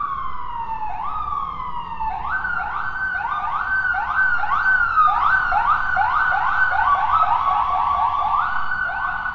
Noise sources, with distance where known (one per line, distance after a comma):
siren